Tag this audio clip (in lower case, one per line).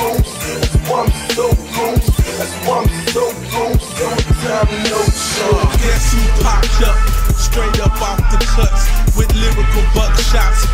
music